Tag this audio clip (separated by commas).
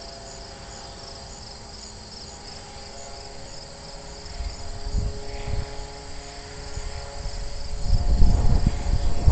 Aircraft, Fixed-wing aircraft, Vehicle